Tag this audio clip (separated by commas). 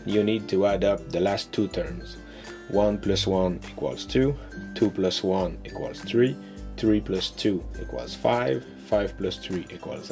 Music, Speech